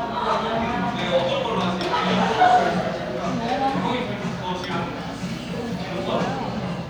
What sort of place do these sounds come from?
cafe